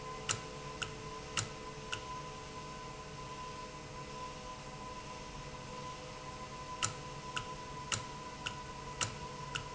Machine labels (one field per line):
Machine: valve